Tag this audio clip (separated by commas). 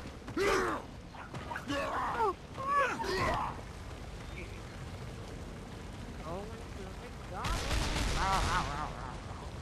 Speech